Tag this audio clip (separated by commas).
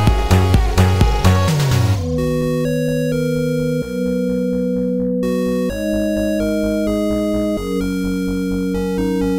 Music